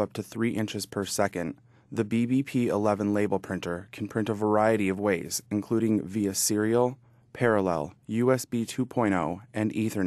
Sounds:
speech

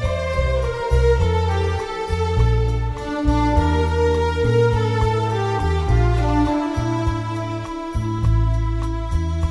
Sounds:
music

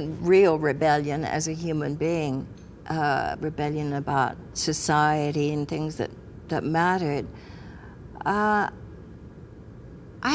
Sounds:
inside a small room, speech

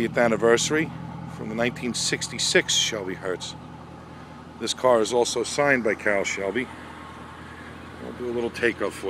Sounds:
speech, vehicle, car

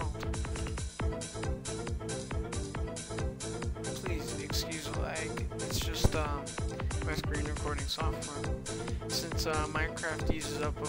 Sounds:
music, speech

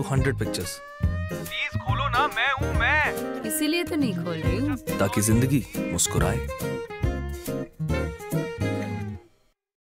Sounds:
music, speech

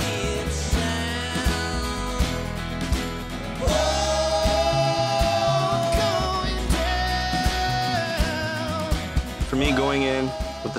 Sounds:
independent music, music, speech

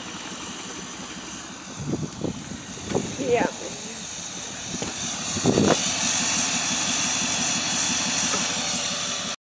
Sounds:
vehicle, speech

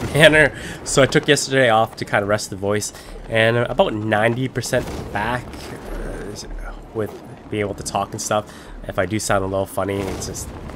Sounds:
speech

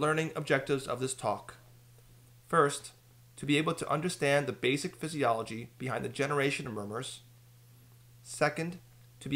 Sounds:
speech

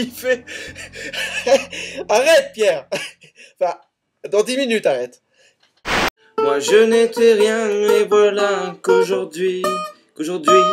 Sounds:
music, speech

